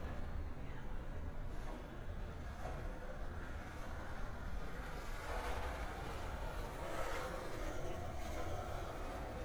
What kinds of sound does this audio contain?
background noise